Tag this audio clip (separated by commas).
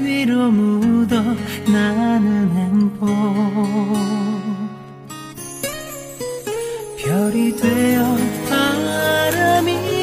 Music